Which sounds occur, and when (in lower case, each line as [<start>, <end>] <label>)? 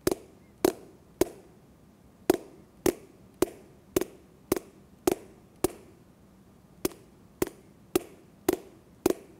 [0.00, 9.35] background noise
[0.02, 0.11] generic impact sounds
[0.34, 0.49] chirp
[0.61, 0.76] generic impact sounds
[1.17, 1.33] generic impact sounds
[2.27, 2.41] generic impact sounds
[2.85, 3.00] generic impact sounds
[3.38, 3.53] generic impact sounds
[3.92, 4.09] generic impact sounds
[4.49, 4.61] generic impact sounds
[5.07, 5.21] generic impact sounds
[5.61, 5.75] generic impact sounds
[6.84, 6.97] generic impact sounds
[7.39, 7.49] generic impact sounds
[7.93, 8.05] generic impact sounds
[8.47, 8.59] generic impact sounds
[9.02, 9.15] generic impact sounds